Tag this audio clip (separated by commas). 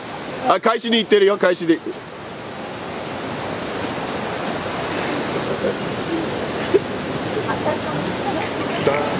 Pink noise, outside, rural or natural, Speech